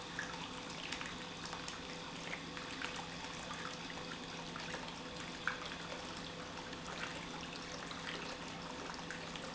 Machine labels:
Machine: pump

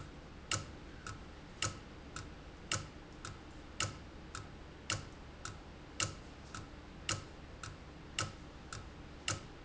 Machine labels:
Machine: valve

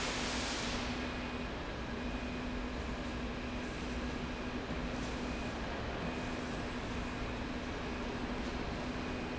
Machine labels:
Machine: slide rail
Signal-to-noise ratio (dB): -6 dB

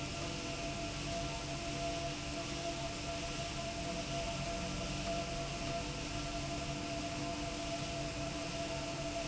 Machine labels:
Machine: slide rail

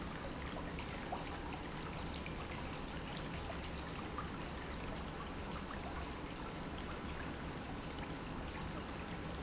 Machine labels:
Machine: pump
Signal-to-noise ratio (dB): 0 dB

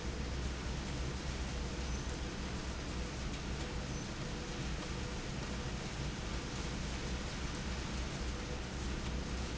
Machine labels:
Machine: slide rail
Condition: abnormal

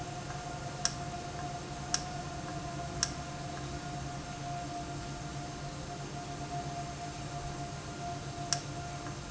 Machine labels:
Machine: valve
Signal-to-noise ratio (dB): -6 dB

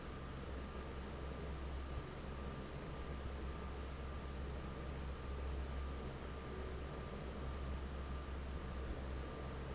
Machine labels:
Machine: fan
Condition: normal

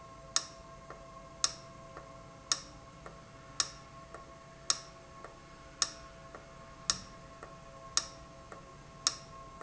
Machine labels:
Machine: valve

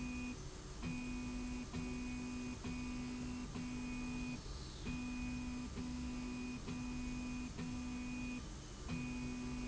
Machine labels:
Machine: slide rail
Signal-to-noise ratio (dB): 6 dB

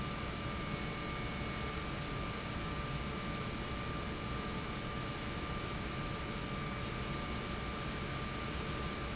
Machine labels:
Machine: pump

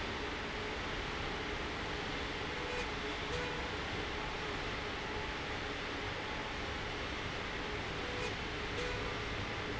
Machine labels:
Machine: slide rail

